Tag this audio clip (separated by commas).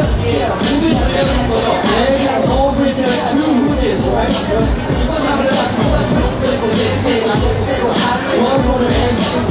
Music